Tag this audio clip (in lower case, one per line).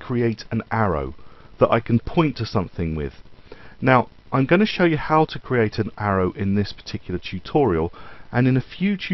speech